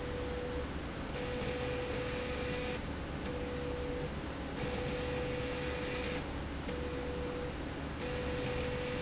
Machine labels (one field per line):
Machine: slide rail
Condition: abnormal